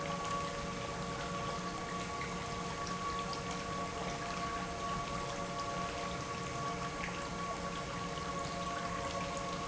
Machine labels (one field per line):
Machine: pump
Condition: normal